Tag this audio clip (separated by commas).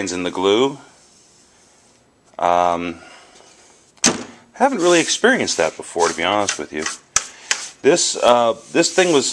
inside a small room, Speech